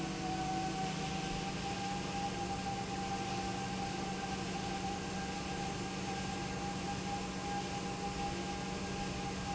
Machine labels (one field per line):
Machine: pump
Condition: normal